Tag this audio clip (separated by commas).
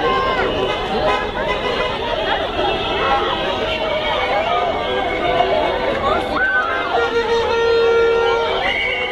Speech, Vehicle